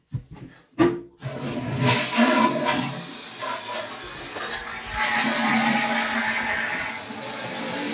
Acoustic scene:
restroom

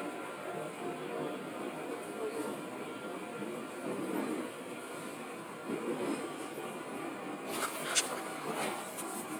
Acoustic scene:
subway train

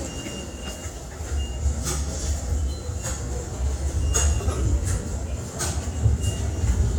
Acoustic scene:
subway station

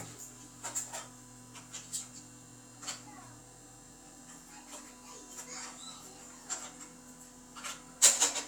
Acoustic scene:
restroom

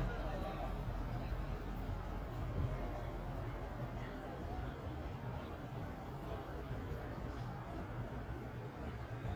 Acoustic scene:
residential area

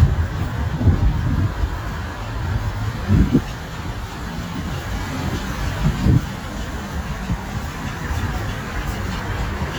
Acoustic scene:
residential area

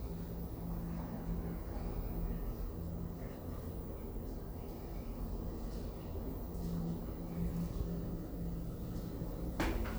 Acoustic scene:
elevator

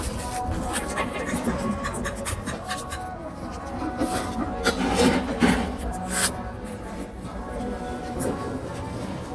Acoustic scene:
cafe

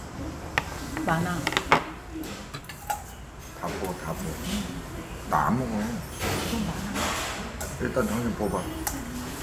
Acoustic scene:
restaurant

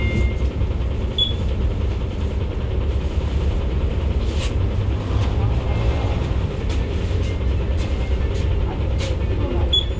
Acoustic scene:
bus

